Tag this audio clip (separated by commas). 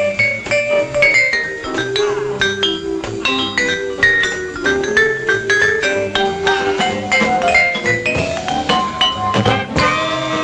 Musical instrument, Trumpet, Jazz, Music, Percussion